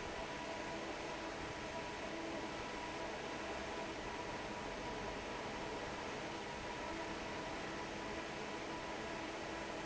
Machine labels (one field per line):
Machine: fan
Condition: normal